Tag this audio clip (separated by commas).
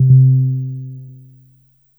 Piano, Keyboard (musical), Music, Musical instrument